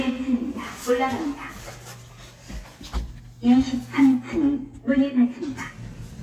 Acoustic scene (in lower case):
elevator